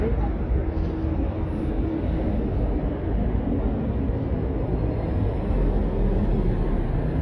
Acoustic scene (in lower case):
street